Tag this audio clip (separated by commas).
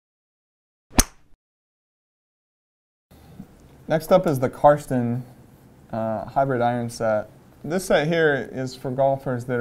Speech